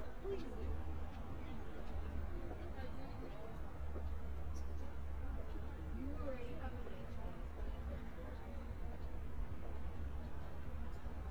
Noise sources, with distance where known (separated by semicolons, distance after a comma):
person or small group talking